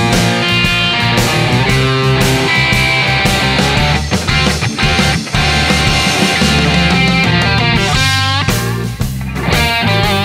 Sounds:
music

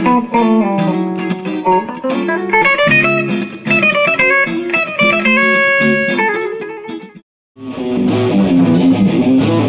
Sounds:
music, plucked string instrument, bass guitar, musical instrument, electric guitar, guitar, strum

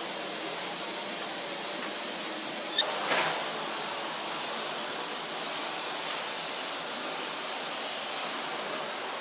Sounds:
vacuum cleaner

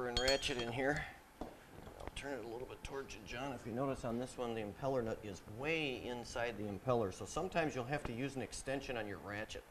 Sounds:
speech

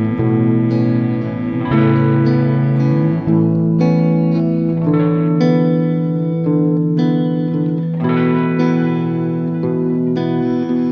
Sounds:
music

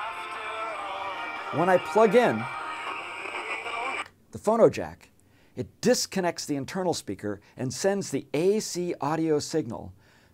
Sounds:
speech, music

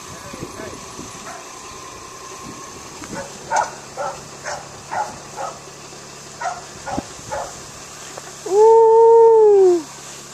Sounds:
speech, animal

